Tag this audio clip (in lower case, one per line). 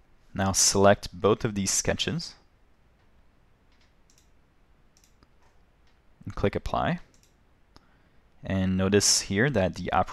speech